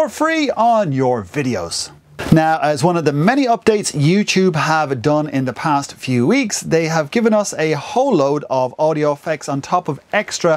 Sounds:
Speech

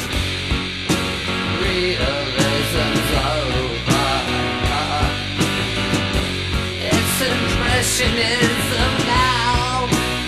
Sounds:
Music

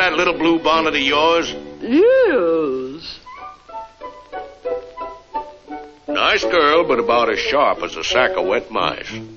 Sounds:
Music, Speech

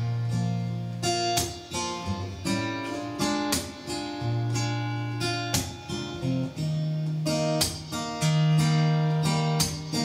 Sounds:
Musical instrument, Guitar, Strum, Plucked string instrument, Music

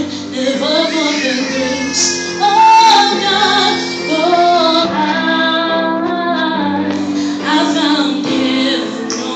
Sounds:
Music, inside a large room or hall, Singing

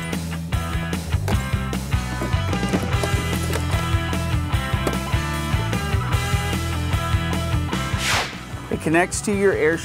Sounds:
Speech, Music

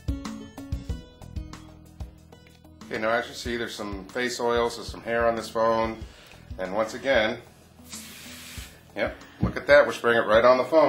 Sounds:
Speech, Spray, Music

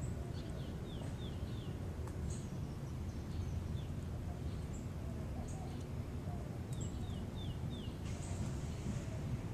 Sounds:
Domestic animals

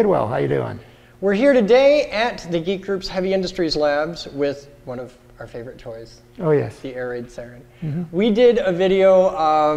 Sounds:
Speech

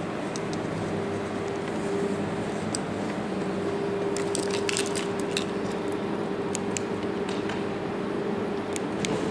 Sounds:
Vehicle

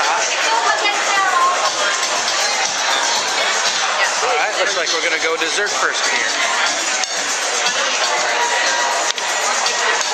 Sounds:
Speech, Music

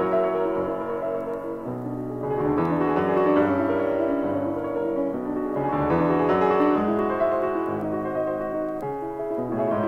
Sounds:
Music

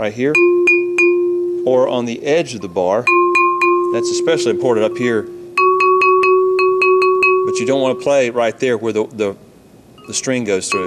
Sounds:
Mallet percussion, Glockenspiel

